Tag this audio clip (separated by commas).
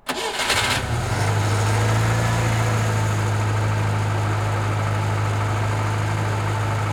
Engine starting, Engine, Vehicle, Motor vehicle (road), Car